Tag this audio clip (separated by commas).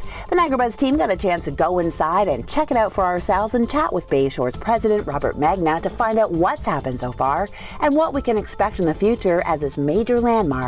Speech, Music